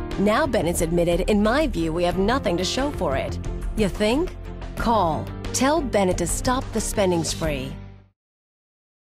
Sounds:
music, speech

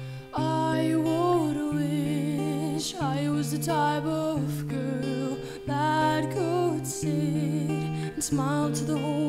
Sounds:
music

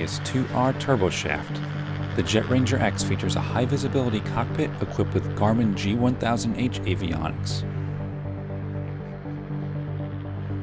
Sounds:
music, speech

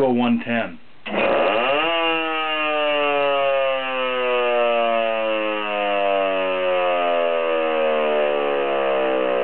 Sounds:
siren, vehicle, speech

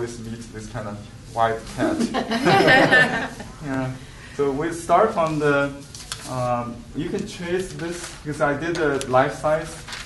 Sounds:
speech

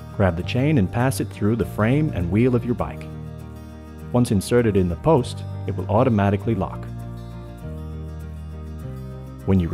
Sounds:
speech, music

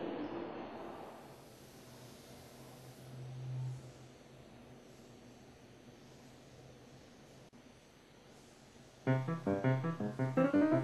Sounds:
music

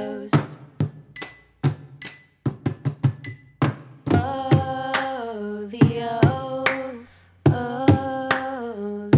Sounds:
thump, music

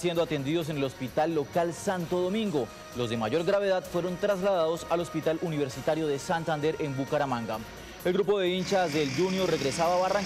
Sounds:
speech, music, vehicle

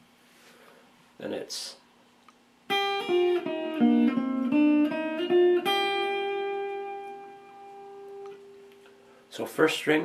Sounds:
musical instrument, music, guitar, classical music, speech, plucked string instrument

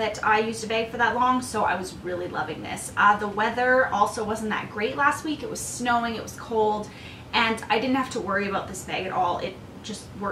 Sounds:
inside a small room, speech

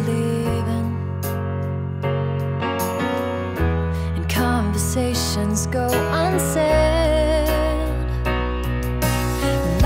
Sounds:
sad music, music

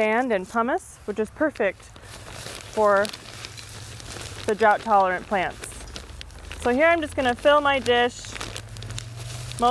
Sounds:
outside, rural or natural, speech

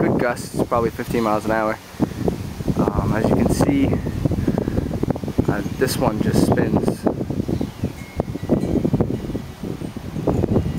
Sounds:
speech, wind

